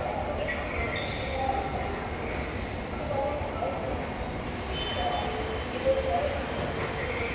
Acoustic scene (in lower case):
subway station